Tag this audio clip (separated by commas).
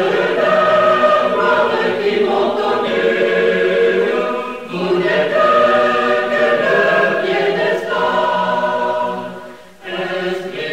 Mantra